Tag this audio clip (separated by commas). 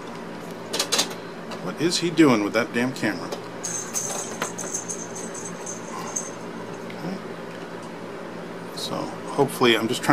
Speech